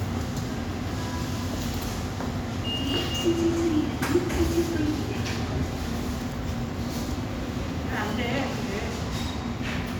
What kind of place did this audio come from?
subway station